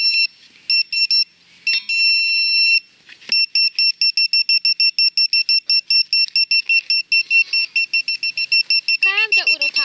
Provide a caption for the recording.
A high pitched beep goes off rapidly and a person speaks briefly